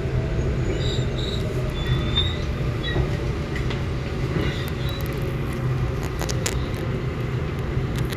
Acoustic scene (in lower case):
subway train